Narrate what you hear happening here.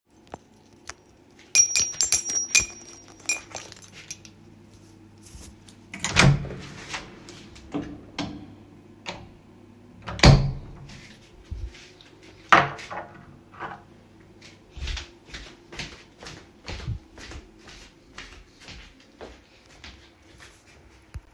I walk toward door grab my key open the door and go outside